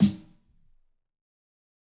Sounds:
Snare drum, Musical instrument, Music, Drum, Percussion

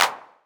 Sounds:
Hands, Clapping

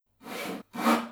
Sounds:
Tools, Sawing

